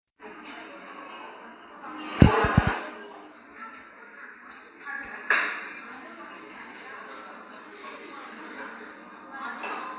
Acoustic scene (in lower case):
cafe